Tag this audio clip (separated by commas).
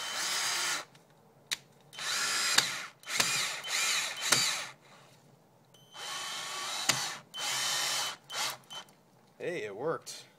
Drill, Speech